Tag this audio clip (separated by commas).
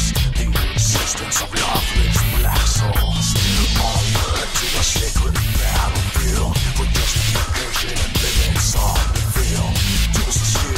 Music